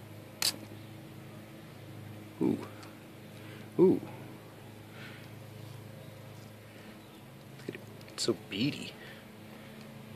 Clicking followed by speech